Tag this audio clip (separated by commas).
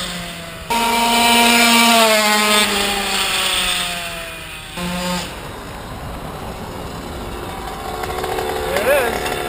revving, Idling, Engine, Car, Vehicle, Medium engine (mid frequency), Speech